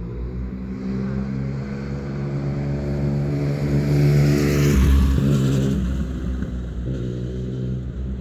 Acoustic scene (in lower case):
residential area